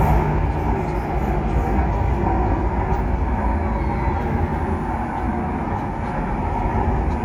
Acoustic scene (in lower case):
subway train